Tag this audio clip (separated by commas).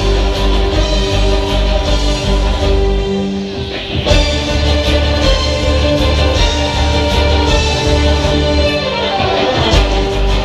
Musical instrument, fiddle, Music